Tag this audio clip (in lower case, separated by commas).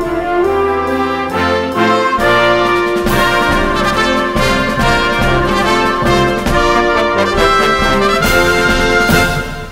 playing french horn